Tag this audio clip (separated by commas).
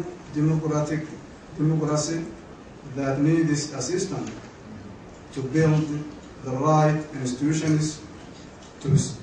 Narration, man speaking, Speech